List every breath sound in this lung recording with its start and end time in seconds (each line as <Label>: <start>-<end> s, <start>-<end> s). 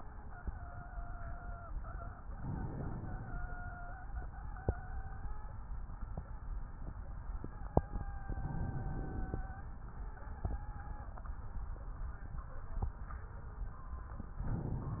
Inhalation: 2.29-3.38 s, 8.31-9.40 s, 14.43-15.00 s